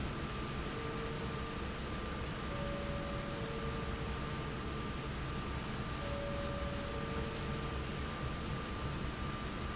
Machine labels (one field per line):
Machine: fan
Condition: abnormal